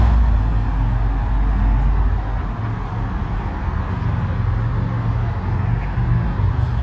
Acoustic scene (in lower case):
street